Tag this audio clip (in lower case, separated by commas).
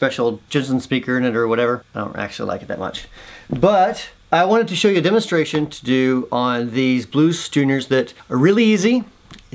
speech